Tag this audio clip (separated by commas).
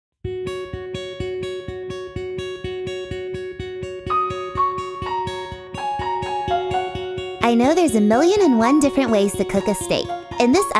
inside a small room, Speech, Music